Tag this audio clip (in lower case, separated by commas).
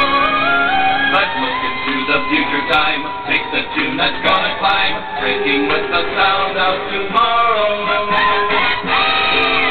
music